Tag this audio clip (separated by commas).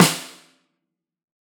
Music, Snare drum, Percussion, Musical instrument, Drum